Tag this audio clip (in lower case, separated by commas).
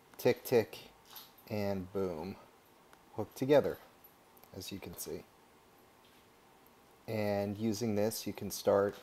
speech